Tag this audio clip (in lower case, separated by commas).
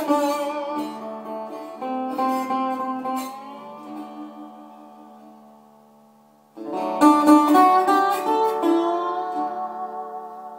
electric guitar, plucked string instrument, musical instrument, music, guitar